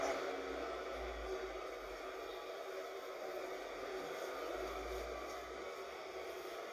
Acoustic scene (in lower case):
bus